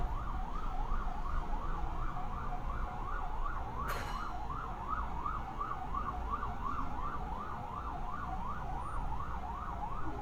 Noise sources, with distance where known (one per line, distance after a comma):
siren